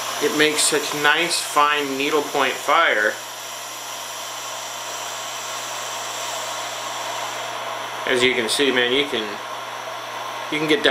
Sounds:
Tools, Power tool

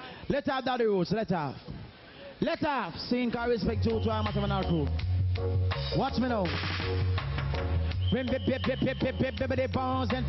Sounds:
Music, Speech

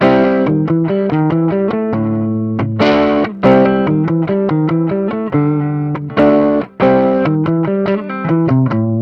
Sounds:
Distortion, Guitar, Musical instrument, Music, Effects unit

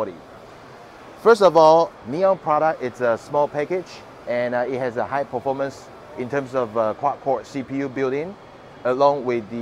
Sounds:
Speech

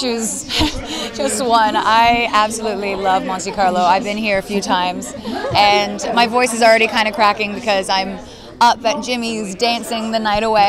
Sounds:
Speech

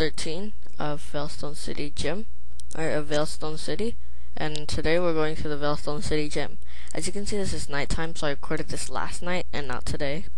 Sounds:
Speech

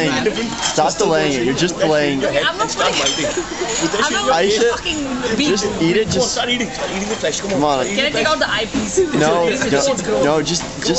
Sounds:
Speech

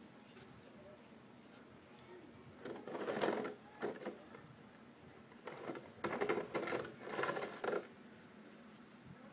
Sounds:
Speech

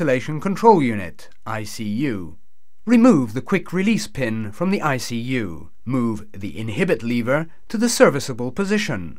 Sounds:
Speech

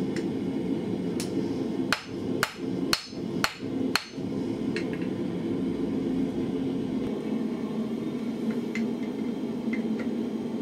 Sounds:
forging swords

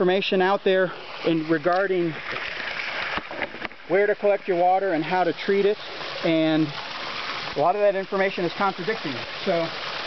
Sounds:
Speech

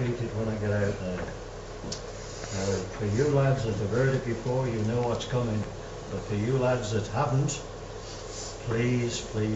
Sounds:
monologue, man speaking, Speech

